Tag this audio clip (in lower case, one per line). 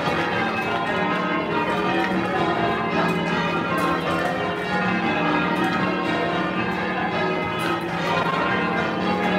church bell ringing